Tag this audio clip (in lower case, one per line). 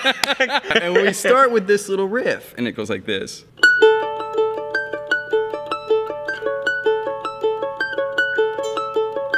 playing mandolin